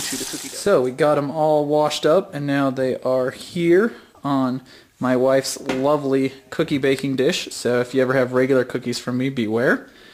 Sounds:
Speech

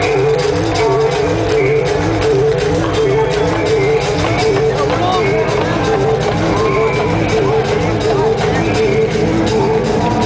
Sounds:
Speech, Music

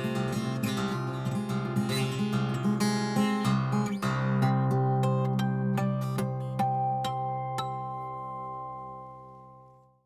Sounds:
Music, Guitar, Musical instrument

